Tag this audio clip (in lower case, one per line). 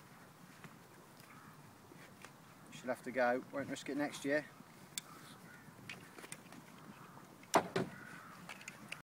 speech